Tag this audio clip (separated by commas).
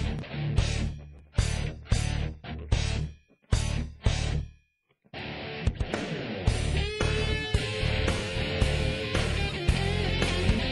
Music